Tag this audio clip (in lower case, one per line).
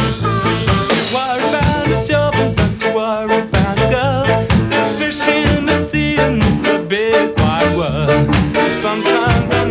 music
ska